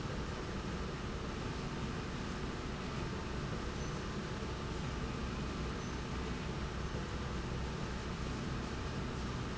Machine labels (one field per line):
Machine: slide rail